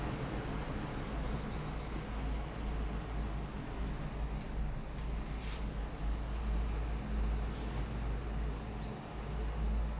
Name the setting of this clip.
street